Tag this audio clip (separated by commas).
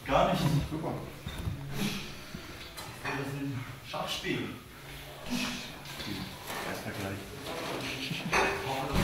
Speech, Laughter